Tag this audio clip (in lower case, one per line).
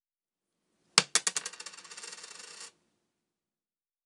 coin (dropping)
home sounds